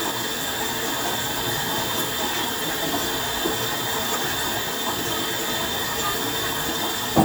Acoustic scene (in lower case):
kitchen